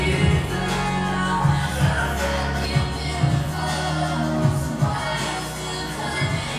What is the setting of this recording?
cafe